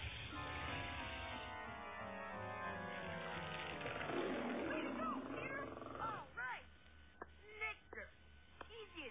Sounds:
Speech, Music

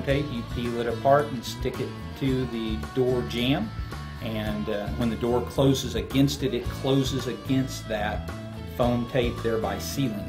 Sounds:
Speech, Music

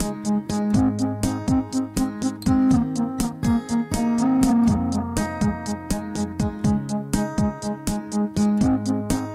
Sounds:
Music

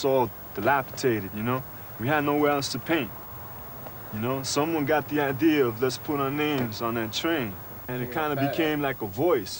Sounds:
Speech

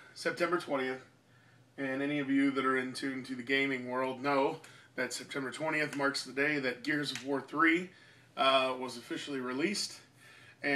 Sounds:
Speech

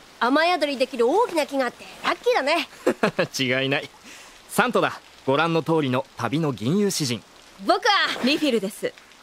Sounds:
Rain, Raindrop

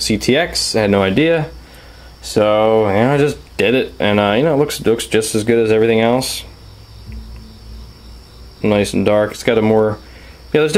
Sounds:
inside a small room, Speech

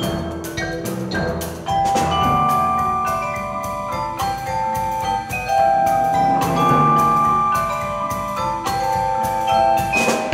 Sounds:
Music, Percussion, playing vibraphone, Vibraphone

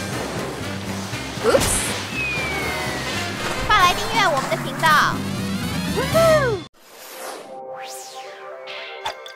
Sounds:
outside, rural or natural, Music, Speech

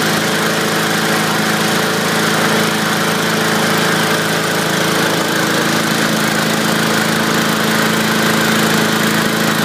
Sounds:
Engine

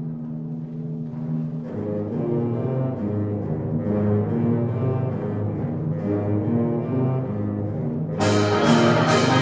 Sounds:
Music, Classical music, inside a large room or hall, Musical instrument, Orchestra

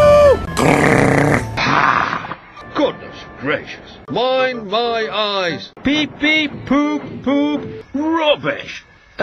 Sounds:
Speech

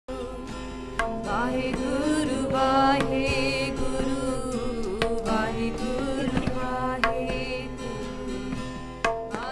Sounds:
Chant

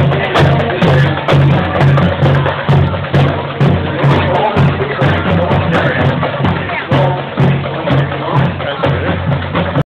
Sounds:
Music, Speech

